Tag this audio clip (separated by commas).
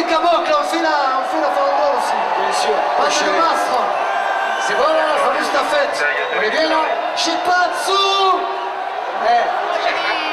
Speech